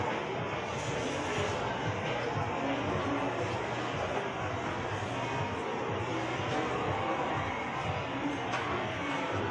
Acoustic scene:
subway station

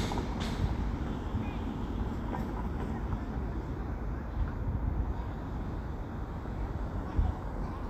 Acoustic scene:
residential area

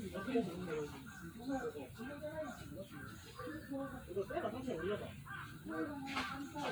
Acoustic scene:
park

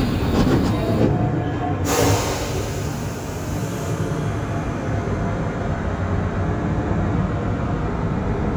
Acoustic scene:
subway train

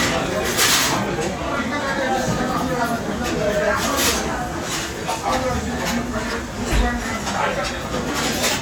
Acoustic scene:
restaurant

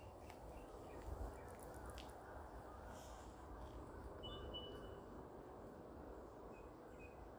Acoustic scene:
park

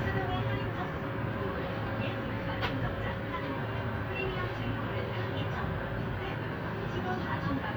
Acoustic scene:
bus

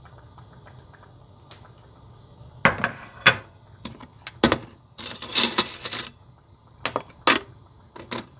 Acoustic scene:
kitchen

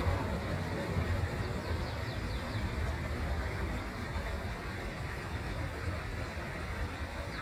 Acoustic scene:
park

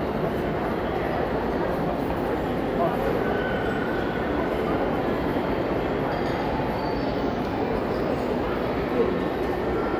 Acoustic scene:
crowded indoor space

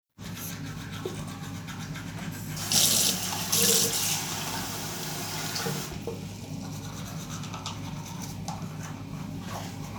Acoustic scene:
restroom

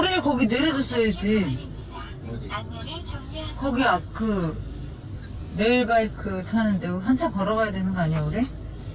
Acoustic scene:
car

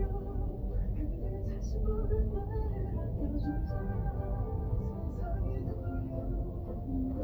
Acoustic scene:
car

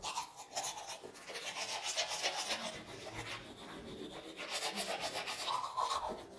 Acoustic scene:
restroom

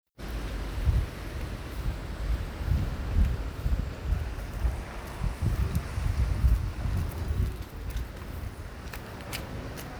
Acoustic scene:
residential area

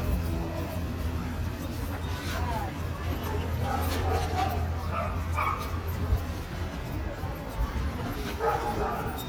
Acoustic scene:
residential area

